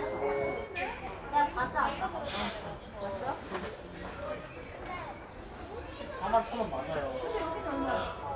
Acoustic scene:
crowded indoor space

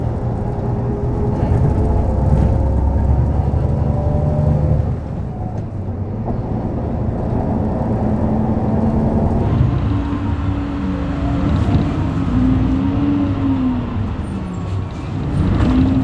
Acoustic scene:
bus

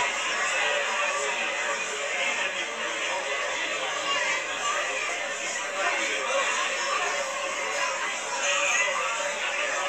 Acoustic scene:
crowded indoor space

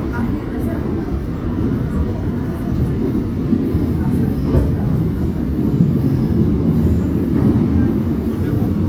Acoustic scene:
subway train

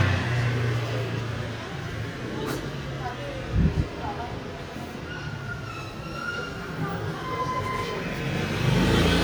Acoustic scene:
residential area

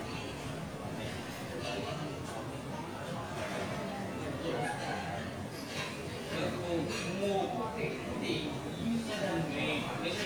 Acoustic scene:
crowded indoor space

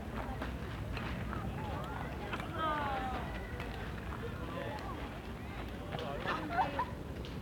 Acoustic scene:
park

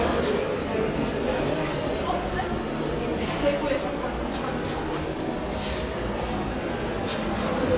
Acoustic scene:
crowded indoor space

